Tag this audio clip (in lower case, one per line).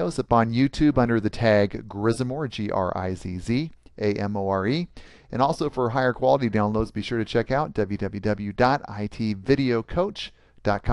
speech